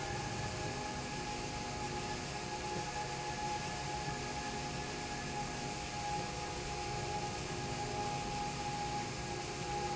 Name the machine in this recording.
slide rail